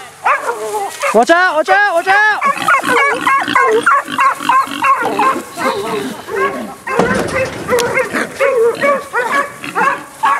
Dog barks followed by pig grunts and finally man shouts